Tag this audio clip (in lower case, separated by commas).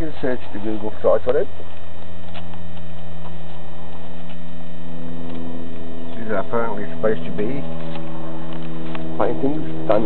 speech